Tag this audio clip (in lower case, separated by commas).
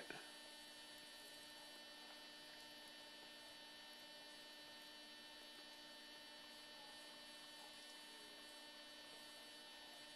mains hum, hum